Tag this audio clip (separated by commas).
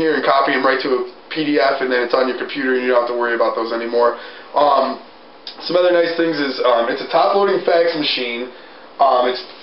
Speech